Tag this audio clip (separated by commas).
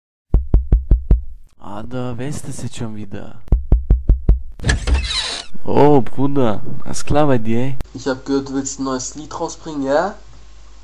Speech